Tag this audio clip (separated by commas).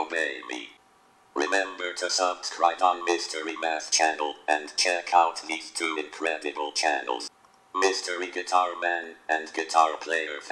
Speech, inside a small room